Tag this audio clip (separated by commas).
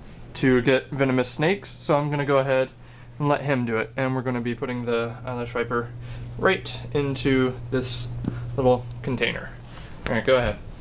Speech, inside a small room